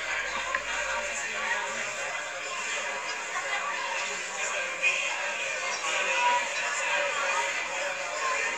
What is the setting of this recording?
crowded indoor space